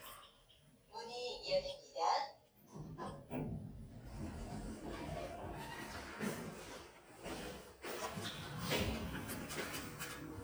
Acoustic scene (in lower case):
elevator